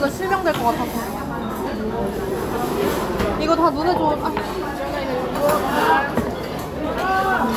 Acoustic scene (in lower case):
crowded indoor space